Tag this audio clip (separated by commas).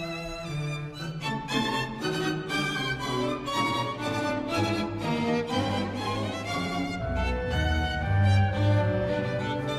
fiddle, Musical instrument, Music